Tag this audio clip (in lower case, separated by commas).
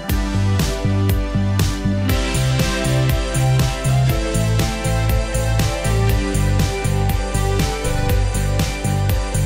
music